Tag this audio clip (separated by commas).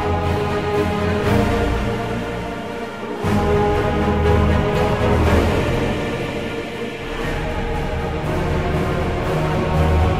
Music, Soundtrack music